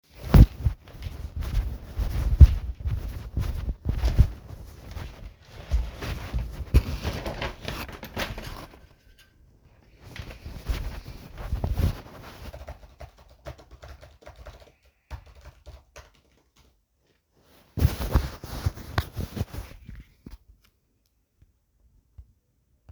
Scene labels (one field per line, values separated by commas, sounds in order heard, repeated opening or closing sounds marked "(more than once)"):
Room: office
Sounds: footsteps, window, keyboard typing